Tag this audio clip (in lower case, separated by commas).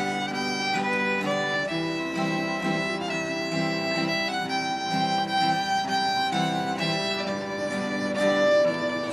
fiddle, music, musical instrument